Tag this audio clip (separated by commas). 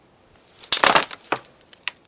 Glass, Shatter